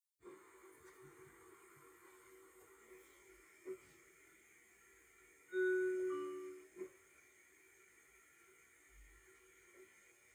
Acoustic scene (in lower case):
car